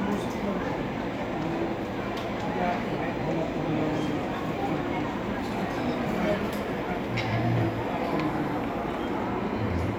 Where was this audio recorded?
in a cafe